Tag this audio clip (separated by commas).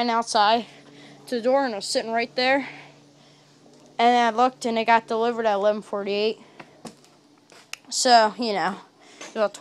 Speech